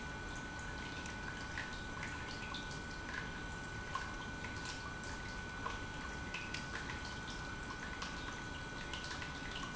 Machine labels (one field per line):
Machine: pump